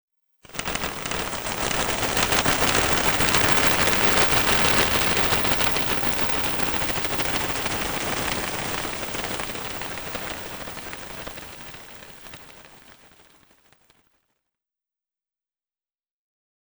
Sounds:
Bird, Wild animals, Animal

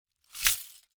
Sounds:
Glass

